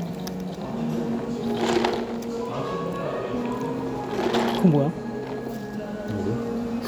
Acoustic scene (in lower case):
cafe